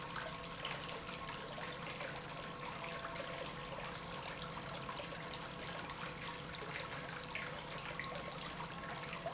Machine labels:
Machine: pump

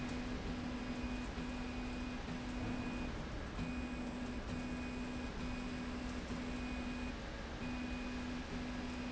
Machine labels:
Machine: slide rail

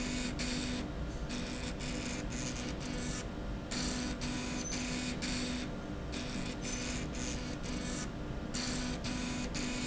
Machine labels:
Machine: slide rail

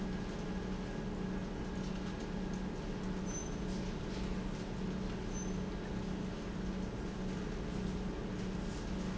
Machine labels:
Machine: pump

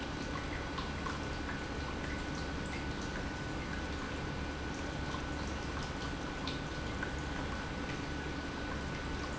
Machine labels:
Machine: pump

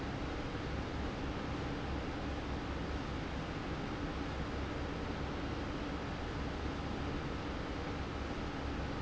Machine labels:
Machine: fan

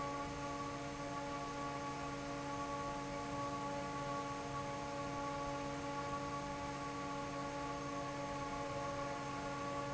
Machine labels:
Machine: fan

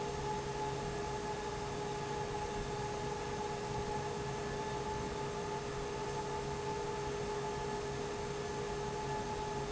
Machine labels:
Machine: fan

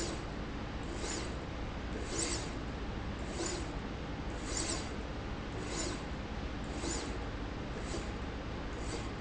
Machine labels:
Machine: slide rail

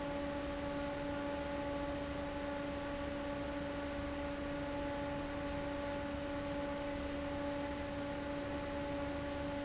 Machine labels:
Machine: fan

